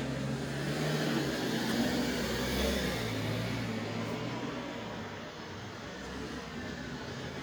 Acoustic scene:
residential area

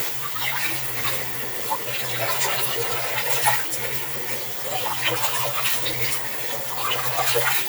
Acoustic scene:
restroom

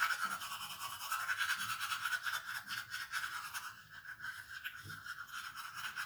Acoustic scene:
restroom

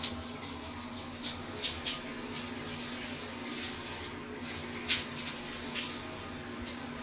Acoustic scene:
restroom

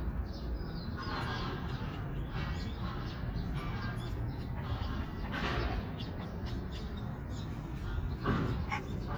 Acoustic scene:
park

